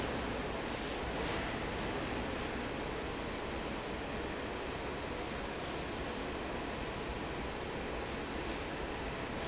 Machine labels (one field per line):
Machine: fan